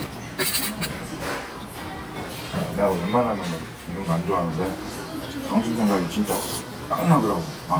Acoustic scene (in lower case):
restaurant